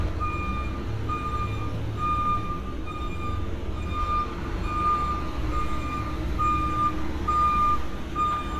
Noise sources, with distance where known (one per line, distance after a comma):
reverse beeper, near